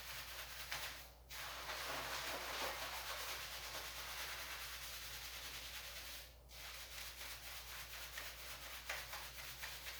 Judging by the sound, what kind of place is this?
restroom